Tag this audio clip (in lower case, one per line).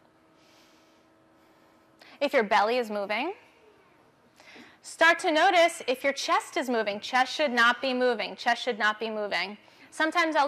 speech